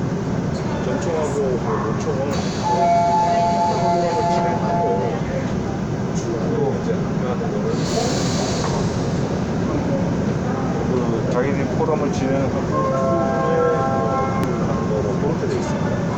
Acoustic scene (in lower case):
subway train